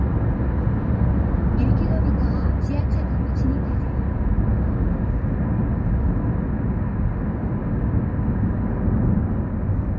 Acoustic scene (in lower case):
car